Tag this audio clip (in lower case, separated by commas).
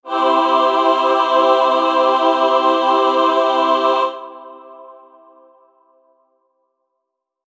musical instrument, music, singing, human voice